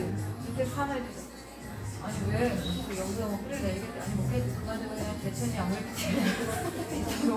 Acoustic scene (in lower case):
cafe